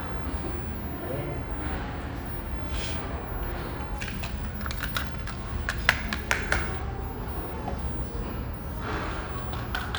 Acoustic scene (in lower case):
cafe